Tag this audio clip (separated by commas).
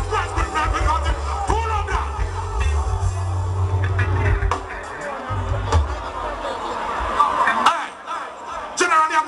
Speech, Music